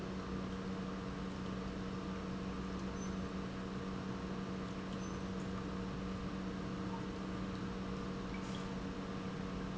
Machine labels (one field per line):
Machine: pump